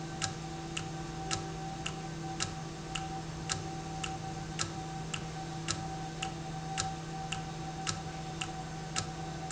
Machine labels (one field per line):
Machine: valve